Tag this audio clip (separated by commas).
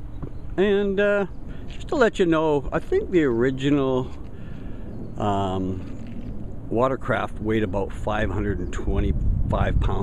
Speech